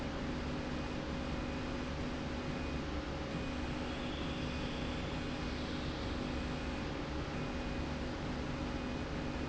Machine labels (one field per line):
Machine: slide rail